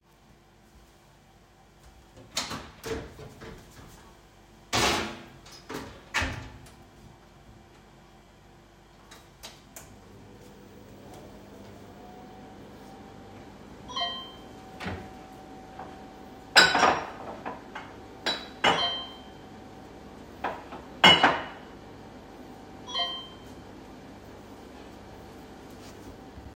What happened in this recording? I opened the microwave and turned it on. While waiting, I opened a drawer and put freshly washed mugs inside while receiving messages on my phone.